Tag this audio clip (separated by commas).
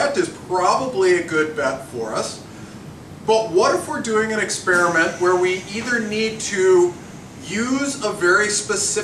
Speech